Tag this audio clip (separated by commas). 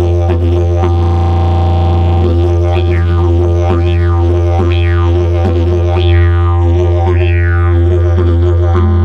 Didgeridoo, Music